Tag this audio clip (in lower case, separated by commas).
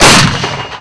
explosion